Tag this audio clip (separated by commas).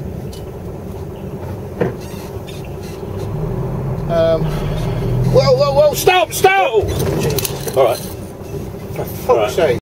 Speech, Car, Vehicle